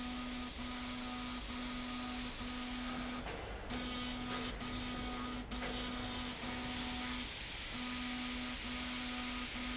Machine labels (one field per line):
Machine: slide rail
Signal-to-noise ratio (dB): 0 dB